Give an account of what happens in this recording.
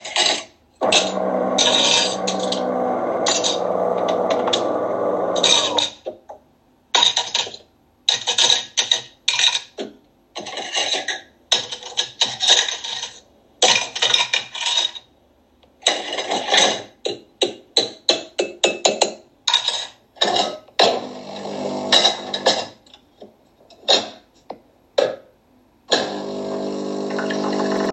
I turned on the coffee machine to make coffee while sorting the dishes